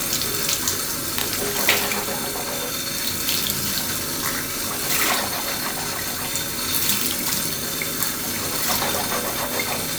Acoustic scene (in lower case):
restroom